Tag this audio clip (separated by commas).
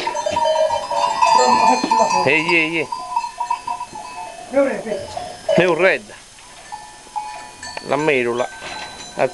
Speech